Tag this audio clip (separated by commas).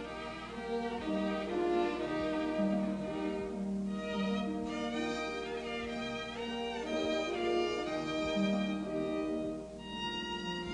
Music, Violin, Musical instrument